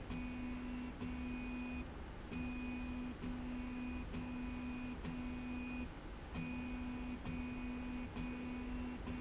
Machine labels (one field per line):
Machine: slide rail